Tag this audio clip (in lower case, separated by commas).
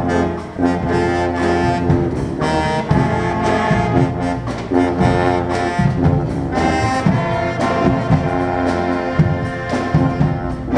jazz, musical instrument, orchestra, inside a large room or hall, music, classical music